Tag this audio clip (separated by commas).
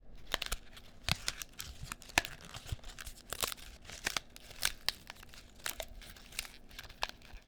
Crumpling